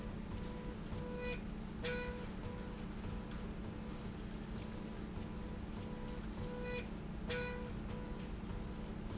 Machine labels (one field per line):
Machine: slide rail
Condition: normal